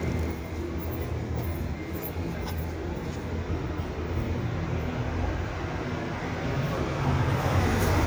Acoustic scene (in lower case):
residential area